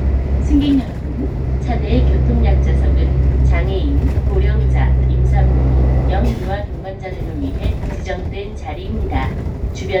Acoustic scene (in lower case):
bus